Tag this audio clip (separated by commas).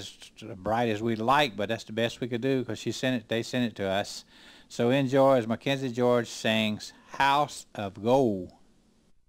Speech